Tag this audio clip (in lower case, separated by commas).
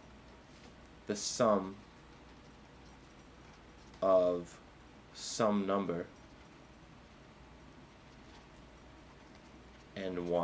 speech